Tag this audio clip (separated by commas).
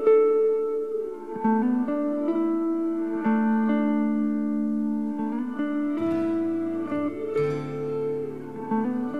Zither, Music